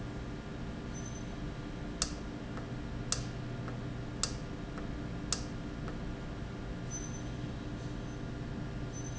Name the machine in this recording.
valve